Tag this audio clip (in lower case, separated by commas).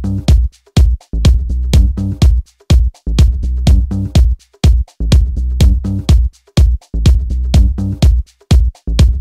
music